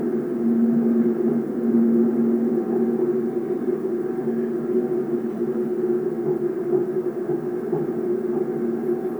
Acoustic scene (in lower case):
subway train